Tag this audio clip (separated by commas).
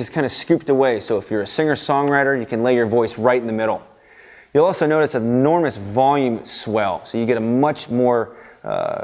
Speech